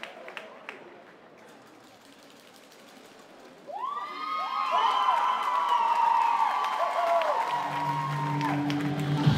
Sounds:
speech
music

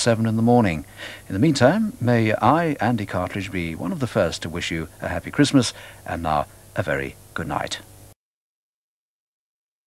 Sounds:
speech

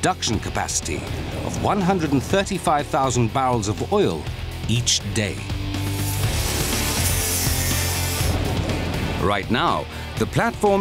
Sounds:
music
speech

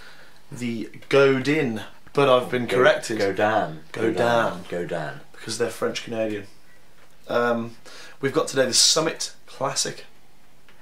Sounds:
speech

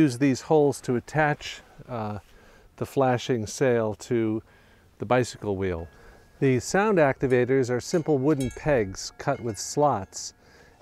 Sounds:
speech

